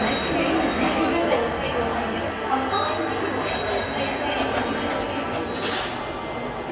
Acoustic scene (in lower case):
subway station